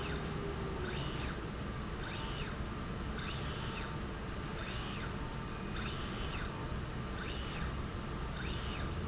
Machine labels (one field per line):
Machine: slide rail